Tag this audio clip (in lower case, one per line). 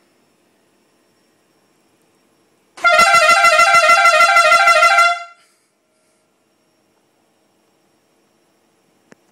vehicle
vehicle horn